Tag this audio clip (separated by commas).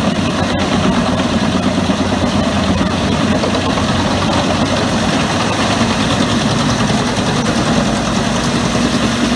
Heavy engine (low frequency), Vehicle, Engine